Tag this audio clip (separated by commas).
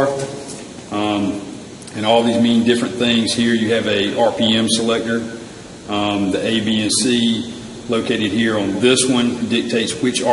Speech